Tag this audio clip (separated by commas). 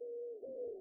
Bird, Wild animals, Animal